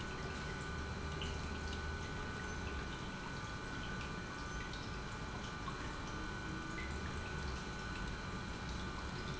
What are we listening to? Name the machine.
pump